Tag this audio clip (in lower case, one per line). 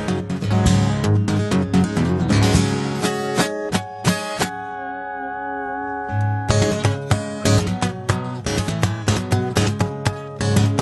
plucked string instrument
musical instrument
music
guitar
echo
acoustic guitar